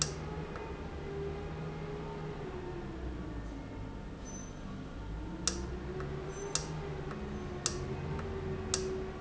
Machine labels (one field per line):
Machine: valve